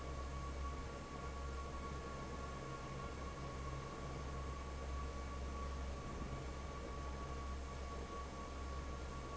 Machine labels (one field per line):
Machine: fan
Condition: normal